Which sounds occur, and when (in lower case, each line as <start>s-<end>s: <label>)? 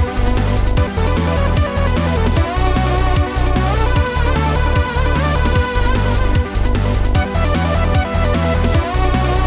0.0s-9.4s: music